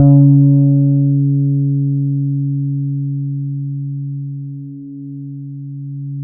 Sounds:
music, plucked string instrument, musical instrument, bass guitar, guitar

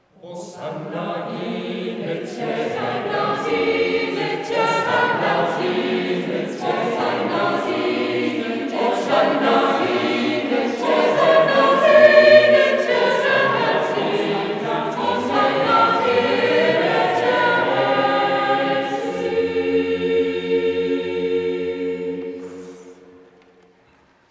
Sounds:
musical instrument, music, singing, human voice

